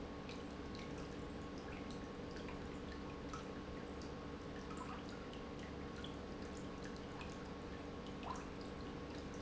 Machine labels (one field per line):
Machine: pump